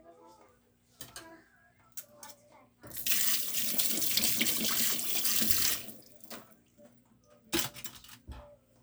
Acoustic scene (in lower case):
kitchen